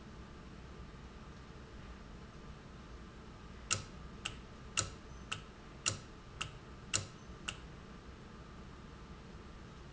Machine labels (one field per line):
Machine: valve